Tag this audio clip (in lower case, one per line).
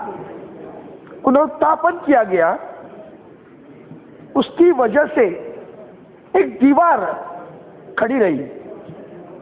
speech
male speech
narration